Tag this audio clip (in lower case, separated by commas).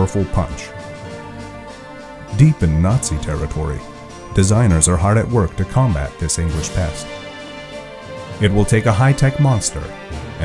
speech, music